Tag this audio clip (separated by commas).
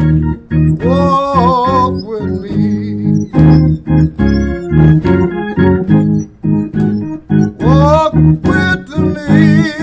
Organ, Hammond organ